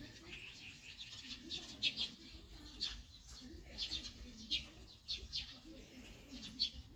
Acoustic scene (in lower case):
park